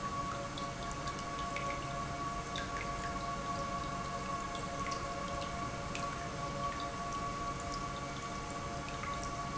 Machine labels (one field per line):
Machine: pump